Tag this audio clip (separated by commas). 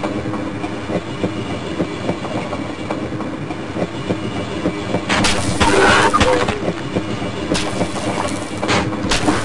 Railroad car, Clickety-clack, Train, Rail transport